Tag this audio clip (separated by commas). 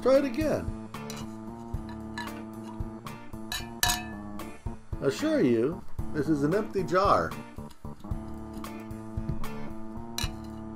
Chink, Glass, Music, Speech